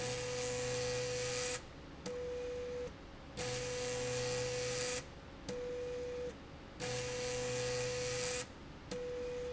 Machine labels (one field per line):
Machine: slide rail